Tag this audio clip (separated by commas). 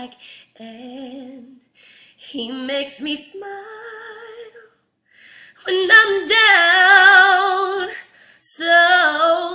Female singing